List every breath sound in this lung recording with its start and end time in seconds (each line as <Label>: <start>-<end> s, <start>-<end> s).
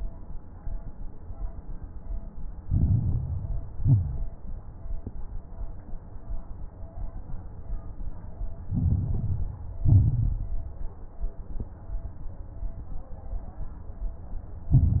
Inhalation: 2.60-3.68 s, 8.70-9.78 s, 14.71-15.00 s
Exhalation: 3.74-4.47 s, 9.82-10.65 s
Crackles: 2.60-3.68 s, 3.74-4.47 s, 8.70-9.78 s, 9.82-10.65 s, 14.71-15.00 s